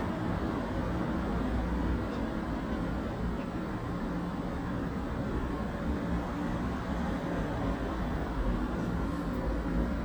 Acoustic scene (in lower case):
residential area